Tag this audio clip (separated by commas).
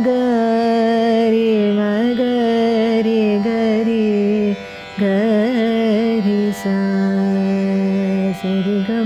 Musical instrument, Carnatic music, Singing, Music, Music of Asia